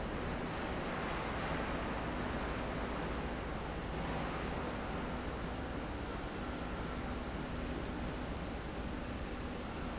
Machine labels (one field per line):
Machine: slide rail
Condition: normal